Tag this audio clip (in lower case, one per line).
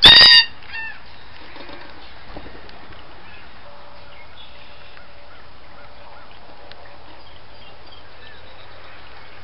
outside, rural or natural
bird